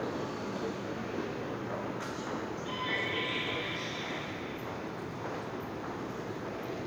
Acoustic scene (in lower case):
subway station